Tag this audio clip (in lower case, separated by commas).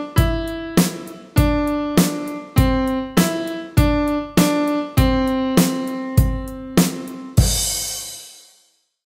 music